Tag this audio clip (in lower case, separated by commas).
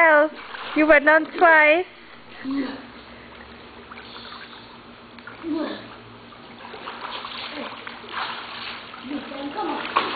speech